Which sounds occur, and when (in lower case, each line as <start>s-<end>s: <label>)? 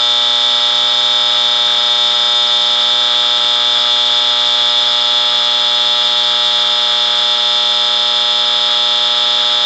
0.0s-9.6s: alarm